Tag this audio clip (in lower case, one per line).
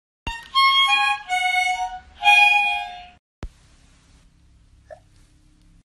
harmonica
woodwind instrument